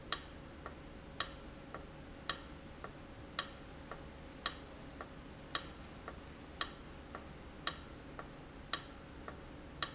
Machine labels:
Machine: valve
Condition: abnormal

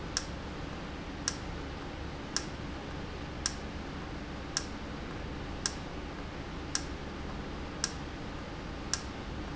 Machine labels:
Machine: valve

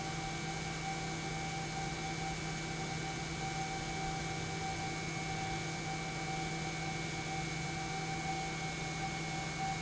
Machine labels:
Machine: pump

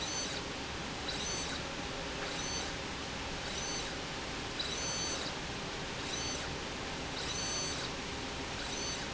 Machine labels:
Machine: slide rail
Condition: abnormal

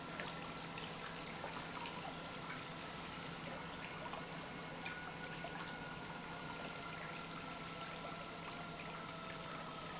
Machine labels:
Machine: pump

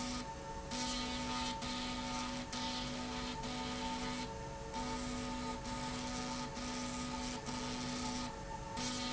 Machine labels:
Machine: slide rail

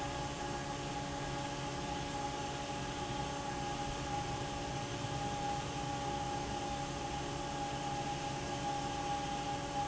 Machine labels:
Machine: fan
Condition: normal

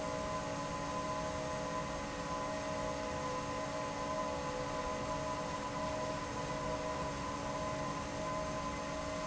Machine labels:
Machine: fan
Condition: normal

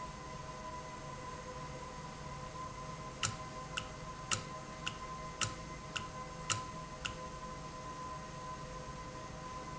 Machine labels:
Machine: valve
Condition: normal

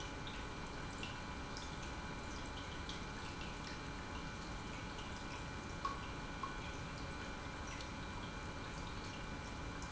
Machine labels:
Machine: pump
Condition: normal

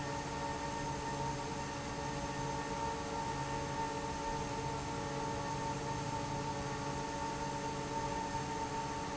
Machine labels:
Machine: fan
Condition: normal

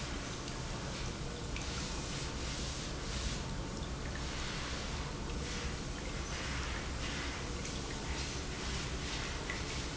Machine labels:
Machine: pump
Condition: normal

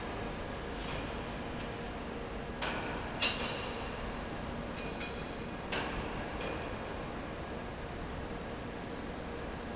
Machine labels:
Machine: fan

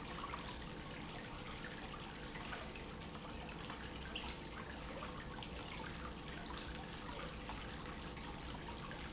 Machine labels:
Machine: pump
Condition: normal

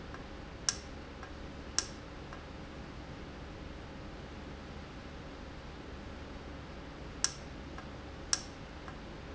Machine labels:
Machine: valve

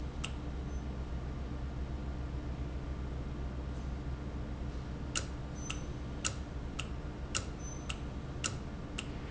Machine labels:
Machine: valve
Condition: normal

